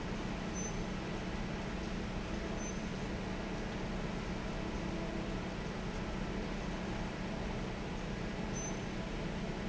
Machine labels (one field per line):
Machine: fan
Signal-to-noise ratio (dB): -6 dB